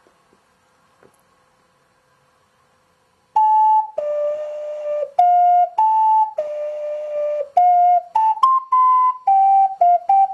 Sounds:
music

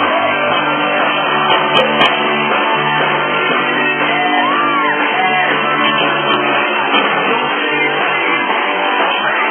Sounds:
music

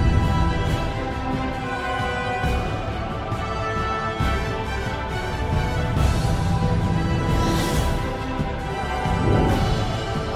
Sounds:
music

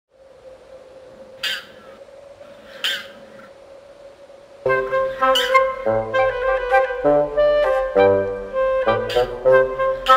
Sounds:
goose, fowl

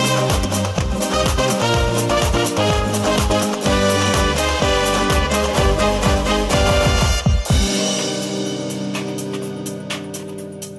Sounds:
music, theme music

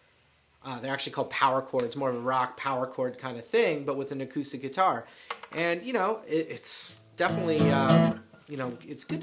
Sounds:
music, strum, speech, acoustic guitar

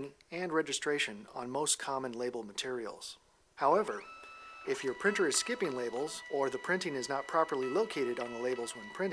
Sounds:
printer, speech

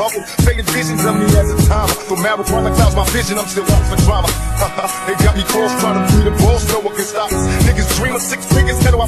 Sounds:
rapping, music, hip hop music

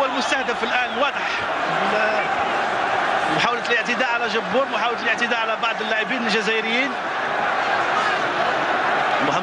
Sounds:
speech

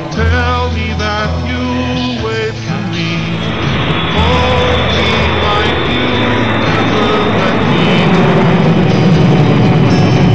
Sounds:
vehicle

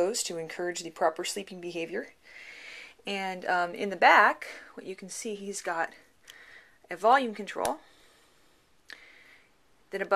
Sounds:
speech

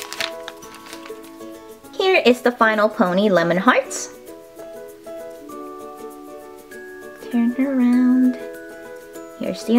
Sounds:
music, speech

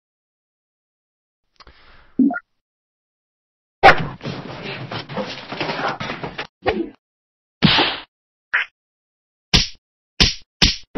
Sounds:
whack

